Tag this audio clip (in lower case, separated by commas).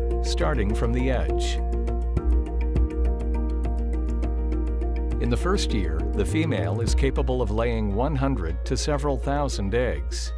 speech, music